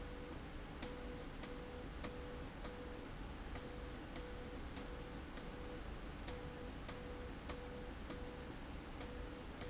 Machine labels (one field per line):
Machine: slide rail